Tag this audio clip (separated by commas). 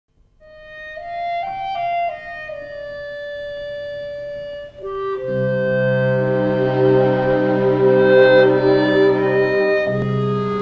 Music, Wind instrument, outside, urban or man-made